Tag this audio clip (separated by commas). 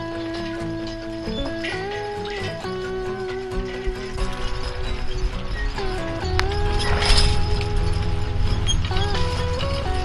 Music